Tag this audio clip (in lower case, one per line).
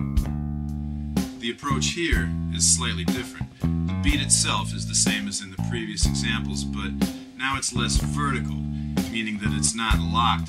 drum
musical instrument
drum kit
speech
music